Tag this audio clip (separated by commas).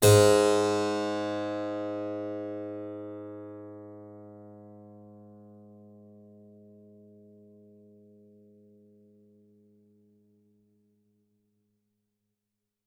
Music, Keyboard (musical), Musical instrument